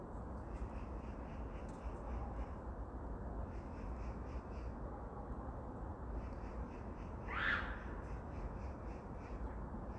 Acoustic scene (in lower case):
park